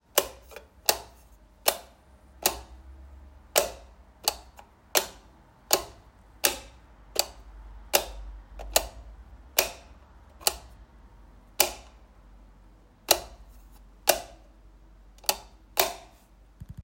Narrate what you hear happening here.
I placed the phone on a table and repeatedly turned the light switch on and off to record the clicking sound.